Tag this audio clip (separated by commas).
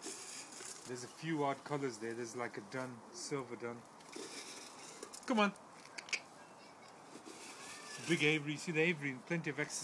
Speech